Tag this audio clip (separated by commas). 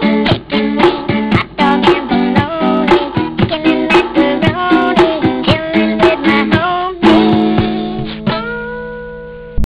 Music